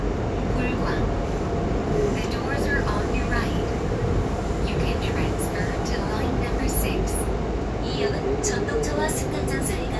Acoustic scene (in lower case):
subway train